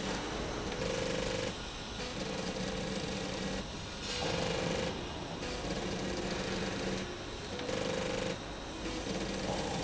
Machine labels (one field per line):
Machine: slide rail